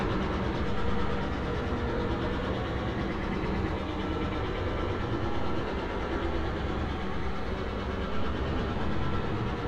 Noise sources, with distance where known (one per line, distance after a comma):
engine of unclear size